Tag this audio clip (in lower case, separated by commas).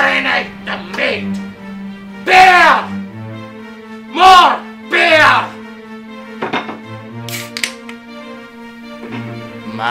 speech, music